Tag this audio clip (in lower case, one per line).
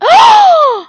human voice
gasp
respiratory sounds
breathing